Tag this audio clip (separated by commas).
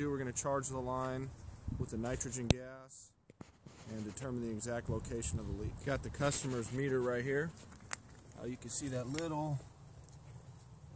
Speech